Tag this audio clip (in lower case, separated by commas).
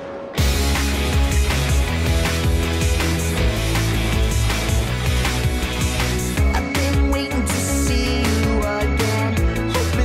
music